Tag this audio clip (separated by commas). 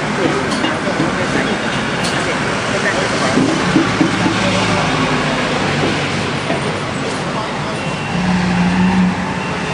Speech